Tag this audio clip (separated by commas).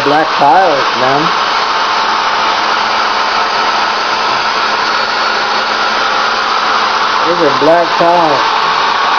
Speech